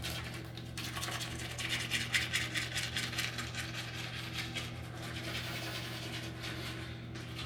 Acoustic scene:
restroom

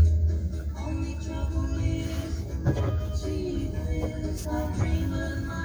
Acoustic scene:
car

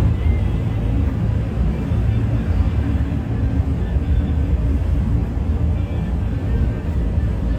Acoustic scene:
bus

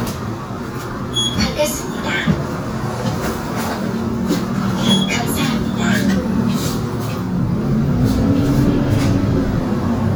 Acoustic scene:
bus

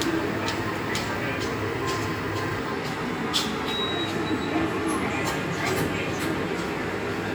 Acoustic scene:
subway station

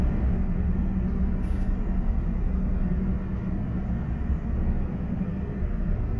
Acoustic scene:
bus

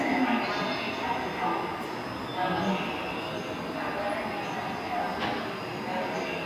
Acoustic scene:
subway station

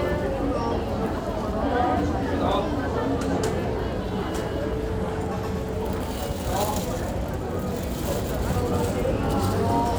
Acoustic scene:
crowded indoor space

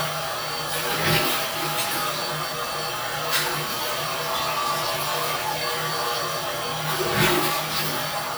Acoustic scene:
restroom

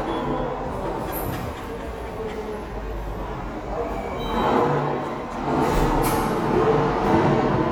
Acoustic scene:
subway station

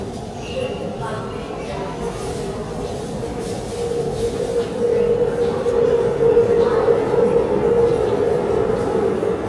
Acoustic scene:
subway station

